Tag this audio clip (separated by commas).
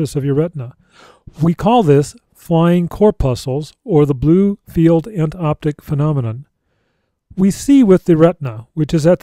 Speech